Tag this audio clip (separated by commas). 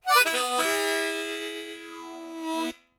Music, Harmonica, Musical instrument